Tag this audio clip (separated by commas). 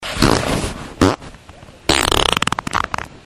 Fart